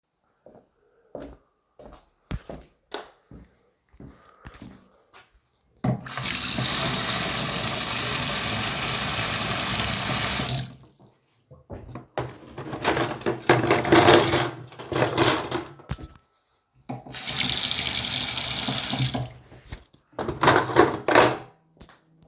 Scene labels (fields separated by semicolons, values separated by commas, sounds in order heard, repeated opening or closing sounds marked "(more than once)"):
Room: kitchen; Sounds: footsteps, light switch, running water, cutlery and dishes